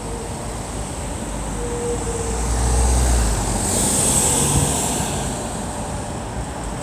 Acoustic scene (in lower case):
street